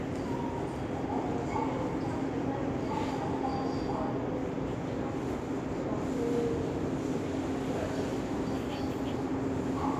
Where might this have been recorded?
in a subway station